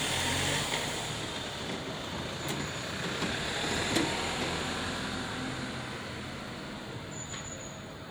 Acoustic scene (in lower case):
residential area